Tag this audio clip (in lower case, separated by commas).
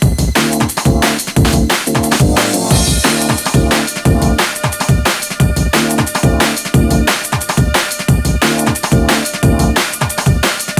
drum, musical instrument, music, drum kit, bass drum